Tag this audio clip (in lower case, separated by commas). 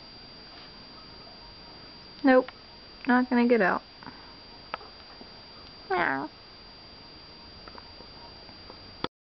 meow, cat, animal, speech, domestic animals